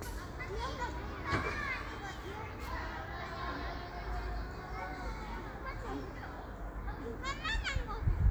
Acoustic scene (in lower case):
park